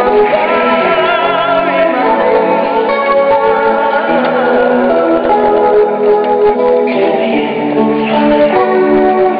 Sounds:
Music

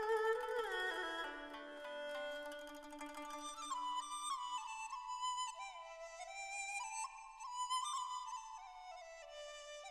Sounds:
Music

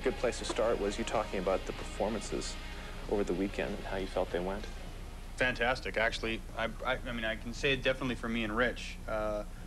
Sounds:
Pop music, Exciting music, Music, Speech, Soundtrack music

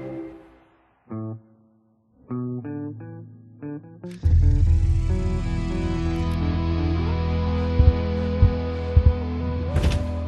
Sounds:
Bass guitar, Musical instrument, Guitar, Plucked string instrument, Music

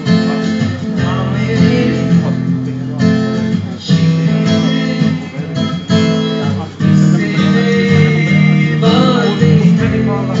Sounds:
Male singing, Music, Speech

